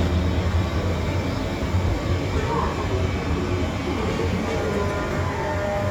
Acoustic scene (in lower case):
subway station